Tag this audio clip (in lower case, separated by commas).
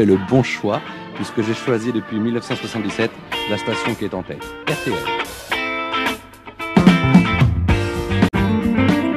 speech, music